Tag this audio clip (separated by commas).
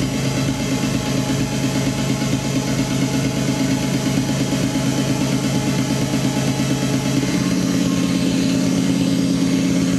Music, House music, Electronic music